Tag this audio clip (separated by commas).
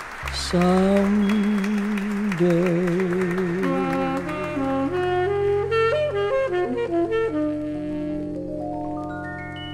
Music